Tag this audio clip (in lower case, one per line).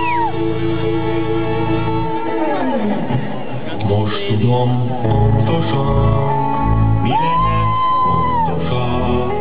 music